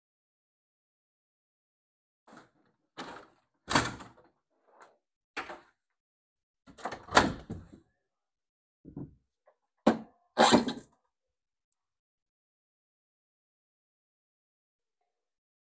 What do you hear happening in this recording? I oppened inner-window, then I oppened outer-window.